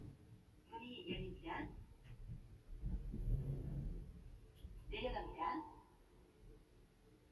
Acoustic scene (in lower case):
elevator